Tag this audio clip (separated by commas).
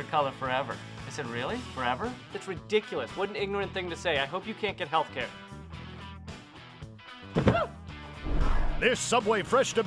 Music, Speech